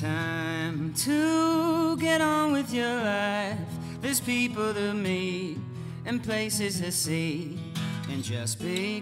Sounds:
rhythm and blues
music

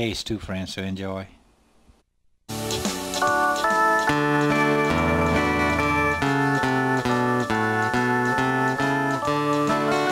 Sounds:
music
gospel music
speech

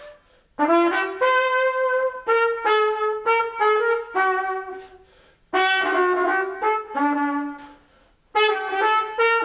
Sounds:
playing cornet

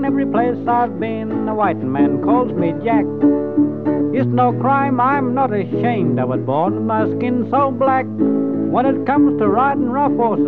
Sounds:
speech
music

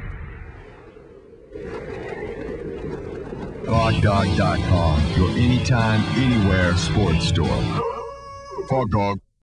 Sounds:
speech
music

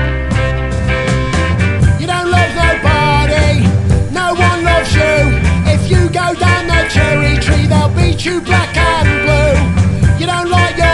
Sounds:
music
ska

